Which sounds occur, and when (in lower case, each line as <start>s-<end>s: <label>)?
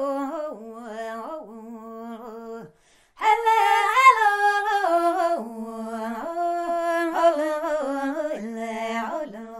0.0s-2.7s: choir
2.7s-3.1s: breathing
3.1s-9.5s: choir